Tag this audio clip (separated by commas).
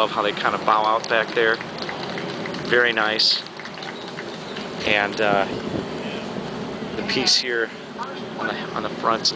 Speech, outside, urban or man-made